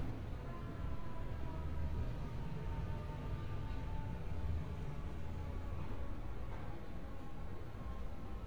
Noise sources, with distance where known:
siren, far

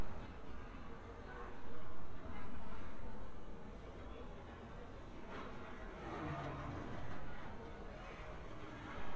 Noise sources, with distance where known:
background noise

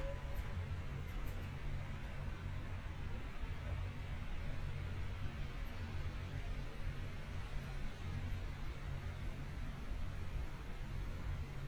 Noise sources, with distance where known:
background noise

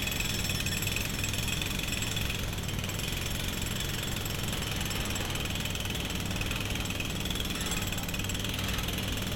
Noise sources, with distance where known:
jackhammer

